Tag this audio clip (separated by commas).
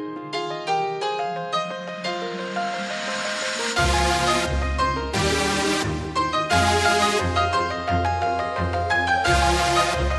Music